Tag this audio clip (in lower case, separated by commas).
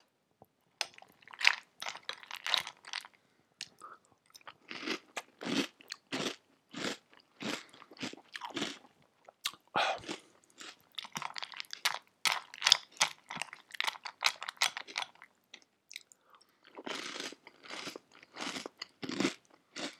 mastication